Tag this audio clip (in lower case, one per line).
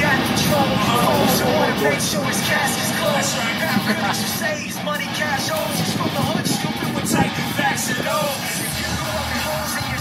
speech
vehicle
music
car